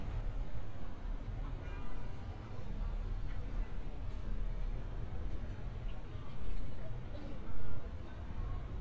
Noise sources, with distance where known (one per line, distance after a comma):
medium-sounding engine, far
car horn
person or small group talking